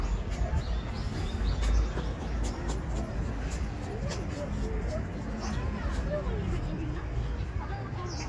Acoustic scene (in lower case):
park